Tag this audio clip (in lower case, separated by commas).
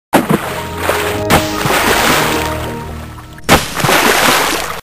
music